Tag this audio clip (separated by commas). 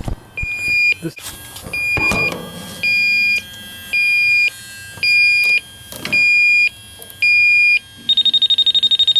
Speech, Smoke detector